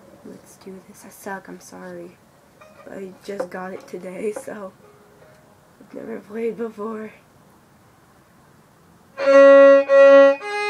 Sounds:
Musical instrument, fiddle, Speech, Music

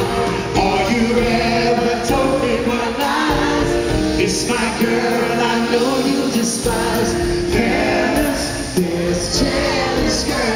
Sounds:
Music, Male singing

